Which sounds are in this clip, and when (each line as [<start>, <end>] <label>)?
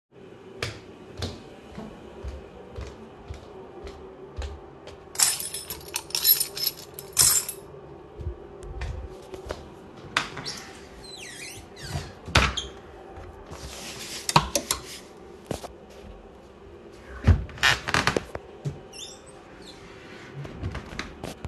[0.45, 5.16] footsteps
[5.13, 7.77] keys
[8.12, 9.73] footsteps
[10.10, 12.91] wardrobe or drawer
[17.11, 21.41] wardrobe or drawer